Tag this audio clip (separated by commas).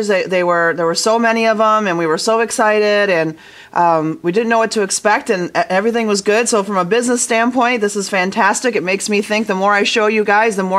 Speech